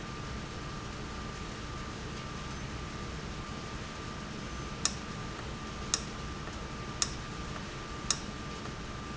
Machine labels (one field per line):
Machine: valve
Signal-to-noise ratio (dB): -6 dB